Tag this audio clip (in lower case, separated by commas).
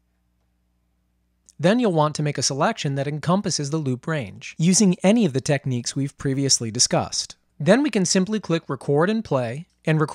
speech